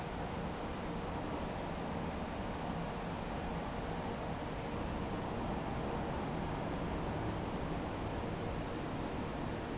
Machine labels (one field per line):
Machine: fan